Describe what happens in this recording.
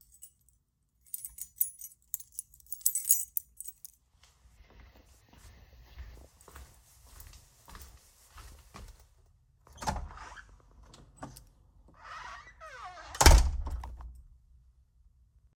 I took out my keys & walked down the hallway, then I opened the door.